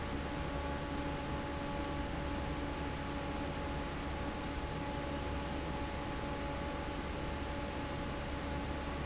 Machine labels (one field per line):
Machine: fan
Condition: normal